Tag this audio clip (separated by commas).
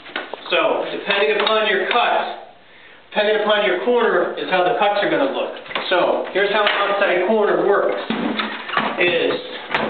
Speech